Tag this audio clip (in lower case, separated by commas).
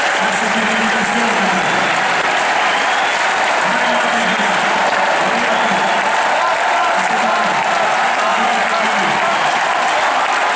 playing tennis